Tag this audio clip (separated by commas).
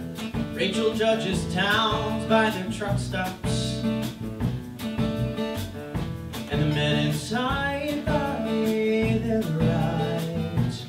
Music